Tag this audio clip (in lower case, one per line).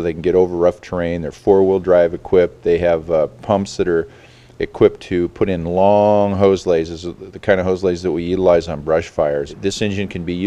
speech